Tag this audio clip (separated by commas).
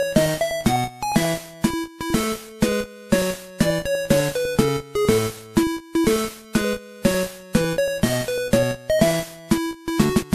Music, Soundtrack music